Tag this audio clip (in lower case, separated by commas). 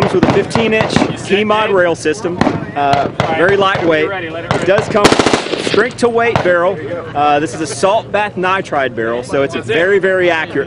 speech, machine gun